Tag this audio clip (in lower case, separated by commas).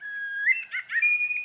wild animals, animal, bird